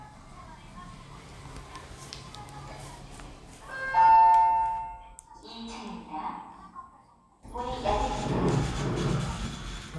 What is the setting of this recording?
elevator